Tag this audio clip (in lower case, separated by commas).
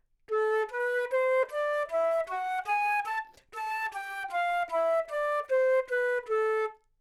woodwind instrument, music, musical instrument